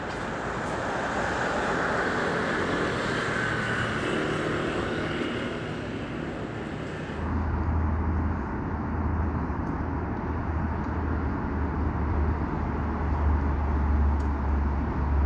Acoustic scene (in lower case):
street